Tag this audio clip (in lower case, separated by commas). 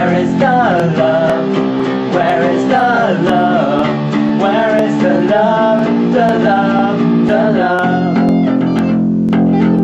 singing, bass guitar, guitar